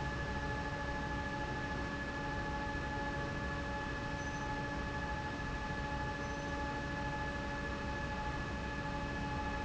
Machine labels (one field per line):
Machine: fan